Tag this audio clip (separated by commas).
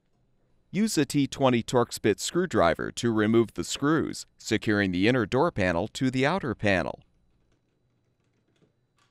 Speech